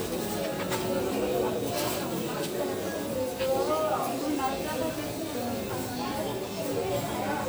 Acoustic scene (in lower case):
crowded indoor space